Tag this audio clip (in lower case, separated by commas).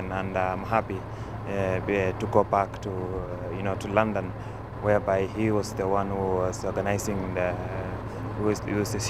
speech